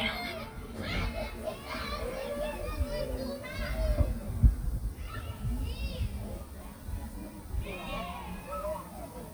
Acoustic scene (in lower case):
park